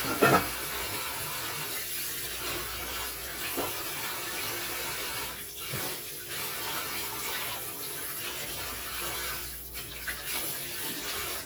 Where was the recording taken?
in a kitchen